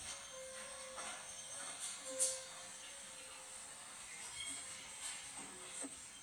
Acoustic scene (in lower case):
cafe